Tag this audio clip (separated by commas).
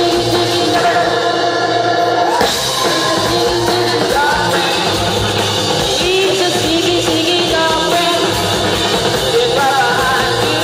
Music, Singing